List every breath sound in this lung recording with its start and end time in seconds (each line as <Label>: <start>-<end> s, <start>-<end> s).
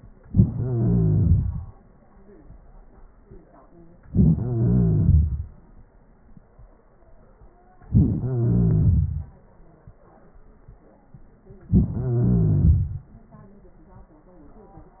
Inhalation: 0.23-1.73 s, 4.06-5.45 s, 7.89-9.28 s, 11.71-13.10 s